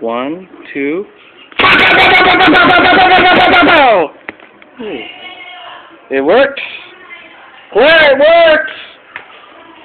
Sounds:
Speech

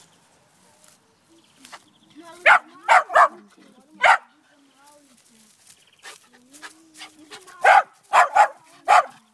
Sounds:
Bow-wow, Dog, Bark, canids, pets, Animal, dog barking

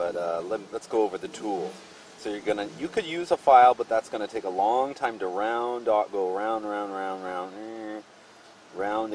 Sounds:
Speech

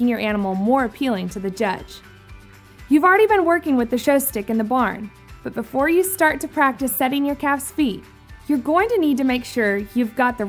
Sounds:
Music, Speech

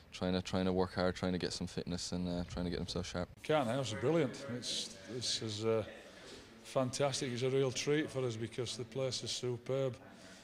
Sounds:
Speech

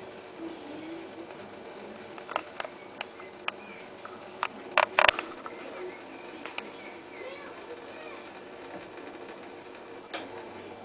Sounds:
Speech

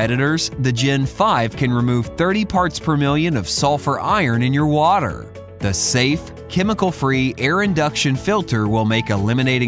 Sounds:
Music, Speech

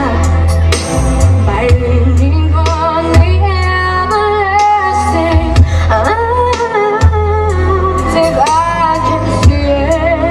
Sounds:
Female singing, Music

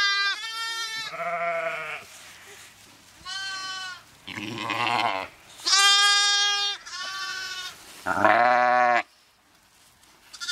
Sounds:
sheep bleating

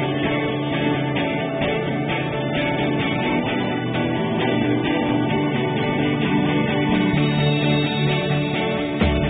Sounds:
Music

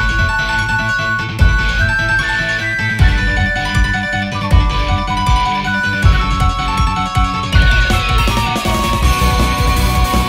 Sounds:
Music

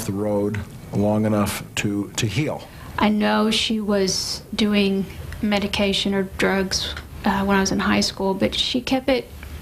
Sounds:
Speech

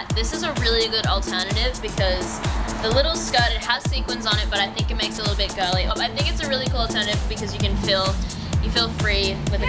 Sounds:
Music, Speech

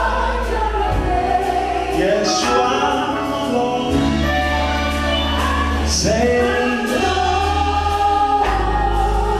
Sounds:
Singing, Music, Gospel music

